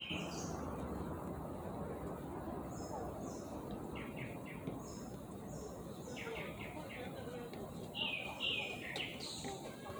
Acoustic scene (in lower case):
park